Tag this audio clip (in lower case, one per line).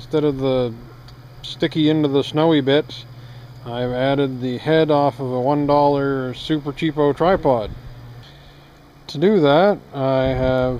speech